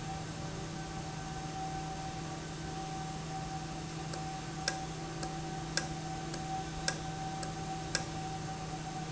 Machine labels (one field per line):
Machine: valve